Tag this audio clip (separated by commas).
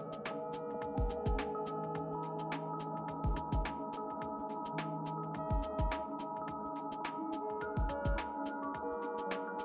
Music